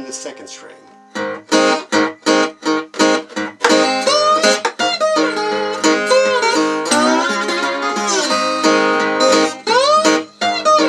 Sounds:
slide guitar

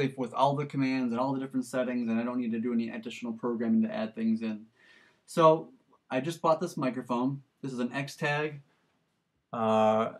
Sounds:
Speech, Male speech

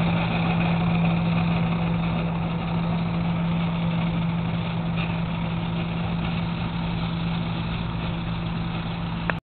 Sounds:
Engine, Vehicle, Medium engine (mid frequency), Idling

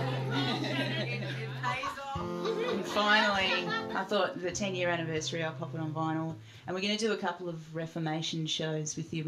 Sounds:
Music, Speech

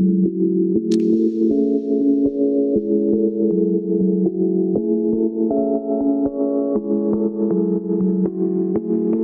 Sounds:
Music

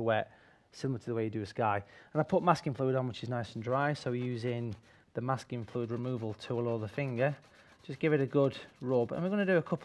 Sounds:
Speech

